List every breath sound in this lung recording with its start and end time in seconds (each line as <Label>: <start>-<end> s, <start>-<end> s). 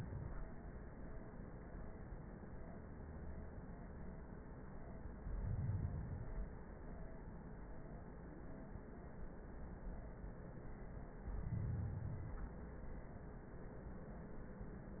Inhalation: 5.16-6.66 s, 11.05-12.55 s